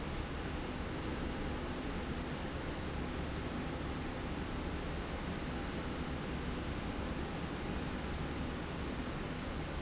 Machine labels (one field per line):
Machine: slide rail